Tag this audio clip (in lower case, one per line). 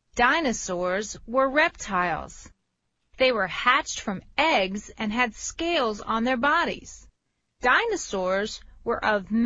speech